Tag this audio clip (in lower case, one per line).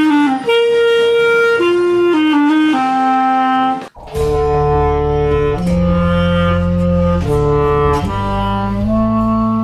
playing clarinet